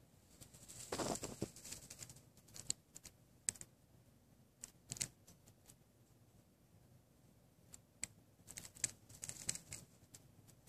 Small buzzing and crinkling